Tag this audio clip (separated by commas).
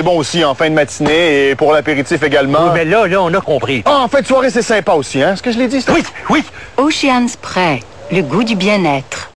Speech